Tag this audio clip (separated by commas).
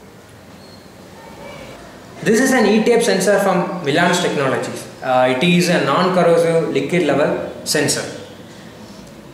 Speech